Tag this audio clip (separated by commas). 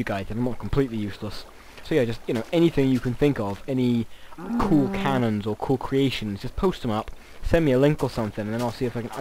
Speech